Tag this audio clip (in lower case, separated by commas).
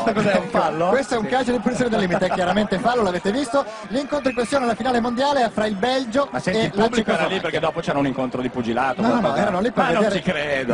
speech